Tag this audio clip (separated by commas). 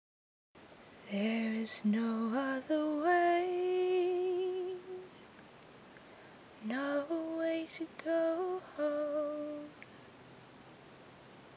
Singing, Female singing, Human voice